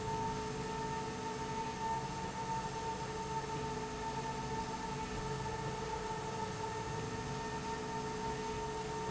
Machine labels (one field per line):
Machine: slide rail